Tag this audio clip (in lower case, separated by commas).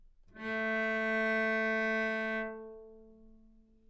bowed string instrument, musical instrument, music